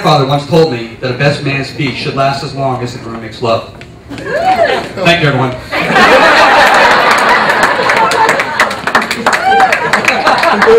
Man speaking followed by laughter and clapping